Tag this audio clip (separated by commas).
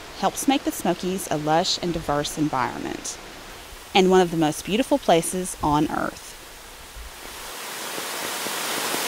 Waterfall